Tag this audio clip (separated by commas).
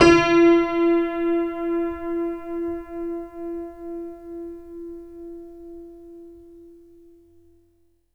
Musical instrument, Music, Keyboard (musical), Piano